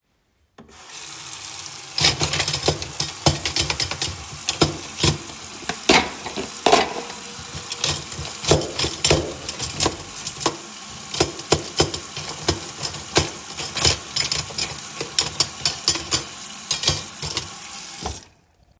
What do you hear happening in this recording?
I opened the kitchen faucet and let the water run. While the water was running, I moved dishes and cutlery.